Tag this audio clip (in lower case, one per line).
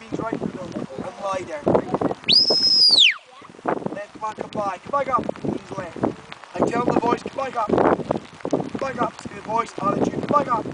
speech